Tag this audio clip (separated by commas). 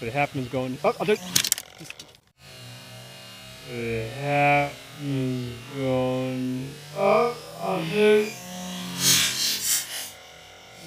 Speech